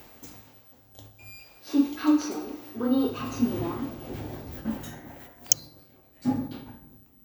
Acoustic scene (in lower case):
elevator